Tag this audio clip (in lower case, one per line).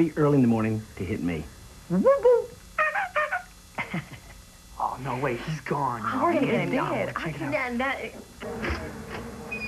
speech